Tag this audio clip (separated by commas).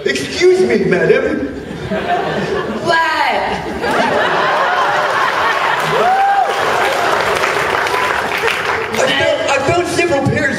Speech